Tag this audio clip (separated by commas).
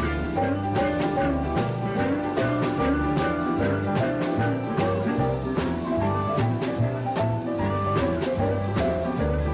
Guitar, Musical instrument, Plucked string instrument, Jazz, Music